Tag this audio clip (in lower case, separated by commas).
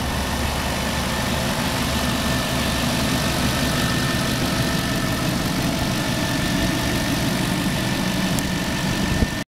medium engine (mid frequency), engine, idling, vehicle